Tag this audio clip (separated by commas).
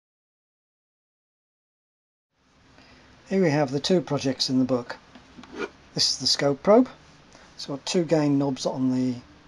Speech